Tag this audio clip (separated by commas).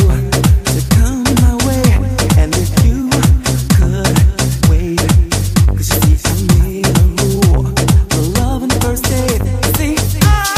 Afrobeat, Music